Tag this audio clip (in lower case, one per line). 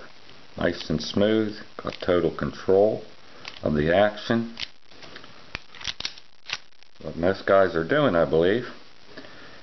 inside a small room
speech